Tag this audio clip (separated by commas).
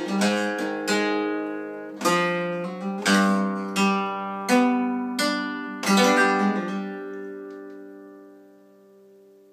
Music, Musical instrument, Guitar, Flamenco, Plucked string instrument, Strum